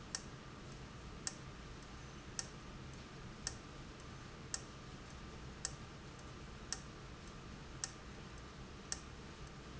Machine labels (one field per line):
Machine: valve